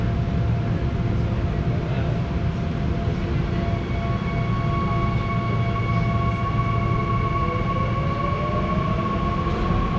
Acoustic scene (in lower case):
subway train